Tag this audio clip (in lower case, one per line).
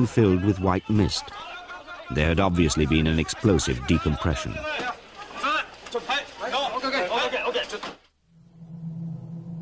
speech